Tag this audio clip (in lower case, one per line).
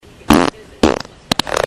fart